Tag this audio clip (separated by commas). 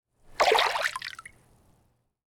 Water, Liquid, Splash